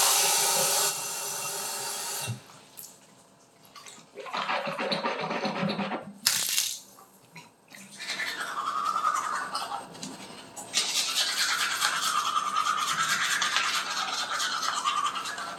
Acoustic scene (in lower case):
restroom